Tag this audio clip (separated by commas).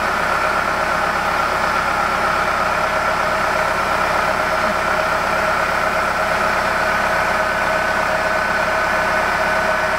Vehicle, Bus